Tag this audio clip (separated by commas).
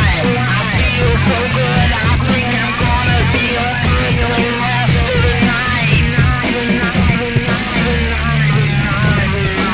Music